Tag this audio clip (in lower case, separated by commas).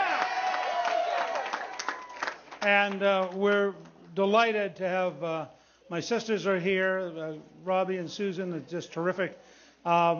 male speech, monologue, speech